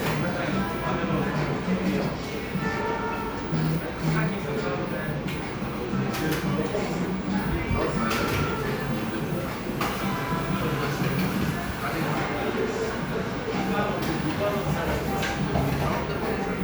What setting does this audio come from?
cafe